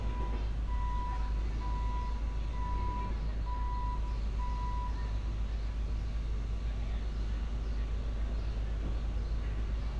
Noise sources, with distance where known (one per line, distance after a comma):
reverse beeper, far